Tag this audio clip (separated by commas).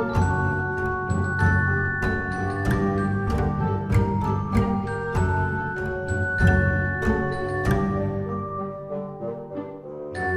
Music